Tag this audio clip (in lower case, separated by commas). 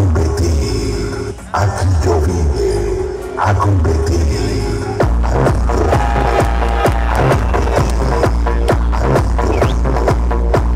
music